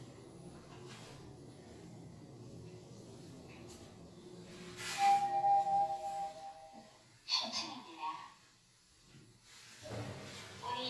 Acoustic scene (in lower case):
elevator